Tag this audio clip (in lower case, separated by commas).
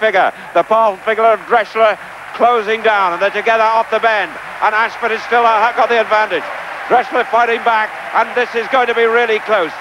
speech